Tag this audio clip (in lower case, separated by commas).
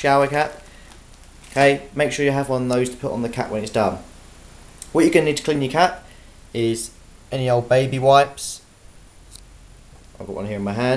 speech